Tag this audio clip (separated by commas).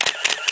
Camera, Mechanisms